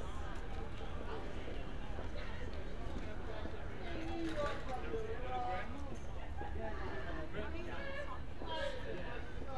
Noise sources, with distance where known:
person or small group talking, far

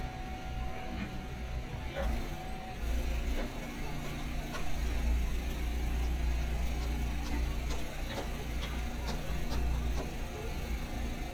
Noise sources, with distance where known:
small-sounding engine, near

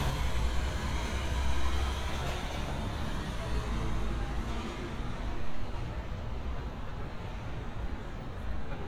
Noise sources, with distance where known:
large-sounding engine, near

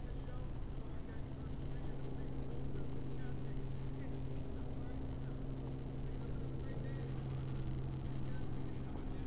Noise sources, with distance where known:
person or small group talking

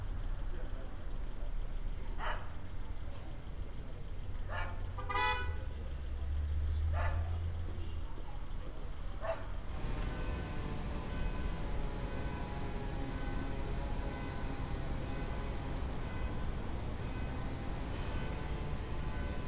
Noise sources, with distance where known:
unidentified alert signal

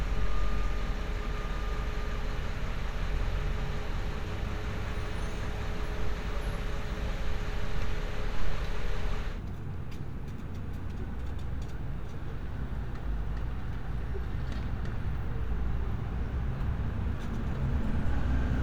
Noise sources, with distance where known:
engine of unclear size

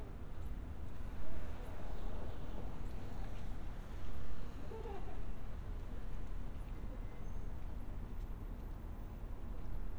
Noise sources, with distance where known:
person or small group talking

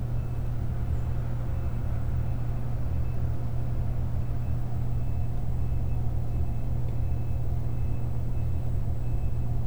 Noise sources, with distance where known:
unidentified alert signal, far

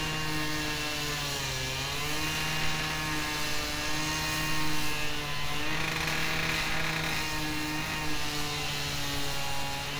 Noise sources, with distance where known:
engine of unclear size; unidentified powered saw, near

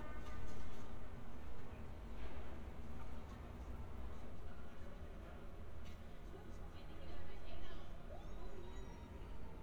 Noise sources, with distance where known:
person or small group talking, near; person or small group shouting

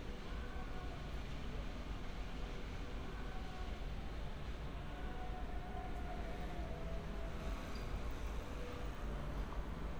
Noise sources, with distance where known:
background noise

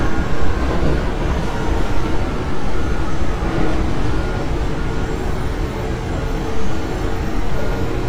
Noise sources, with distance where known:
engine of unclear size, near

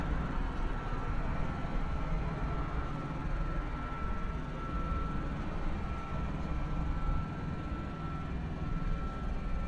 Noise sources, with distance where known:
reverse beeper, far

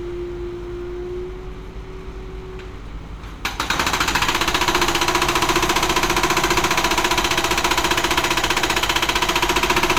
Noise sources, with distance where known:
jackhammer, near

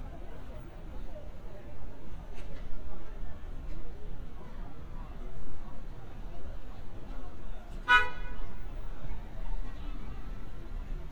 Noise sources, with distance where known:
car horn, near; person or small group talking

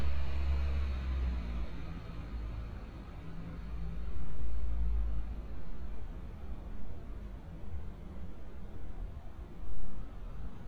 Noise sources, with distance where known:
large-sounding engine

